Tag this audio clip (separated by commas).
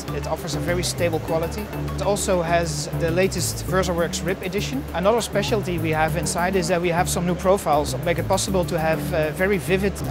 Speech, Music